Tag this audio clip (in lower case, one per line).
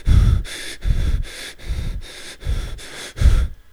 respiratory sounds
breathing